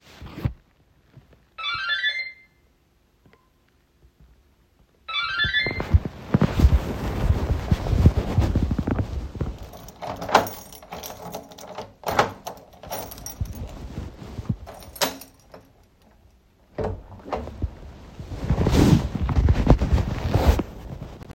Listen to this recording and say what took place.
I have the phone in my pocket; someone is ringing the bell so I am walking over and unlock and open the door.